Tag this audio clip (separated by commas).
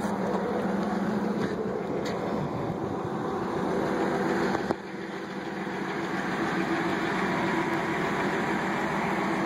Vehicle